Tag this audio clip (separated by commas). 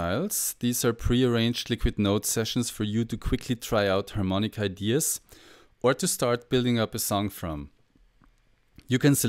Speech